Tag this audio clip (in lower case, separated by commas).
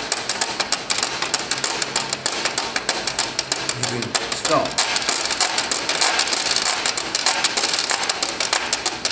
playing washboard